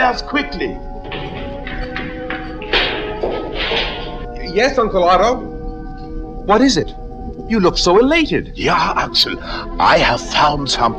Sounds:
Music, Speech

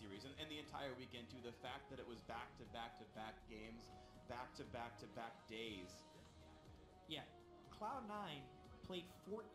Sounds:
Speech

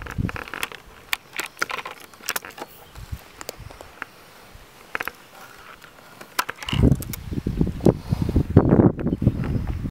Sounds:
outside, rural or natural

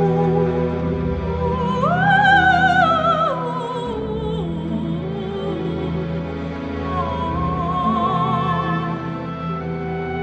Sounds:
Opera, Music

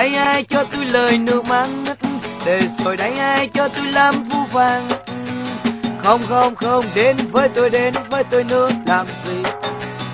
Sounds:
Music

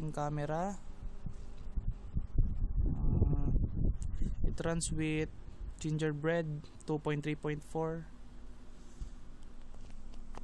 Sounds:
Speech

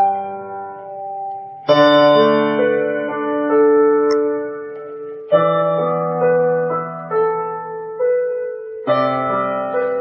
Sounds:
Background music, Tender music, Soundtrack music, Music, Theme music

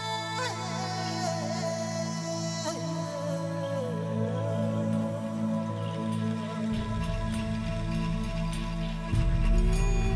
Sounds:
Music

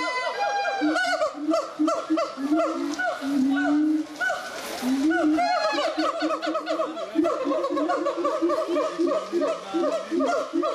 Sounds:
gibbon howling

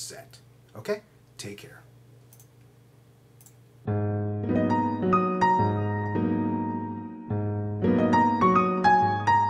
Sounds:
Electric piano, Speech, Music

